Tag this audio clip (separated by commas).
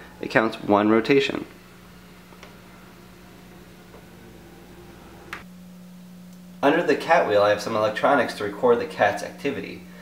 Speech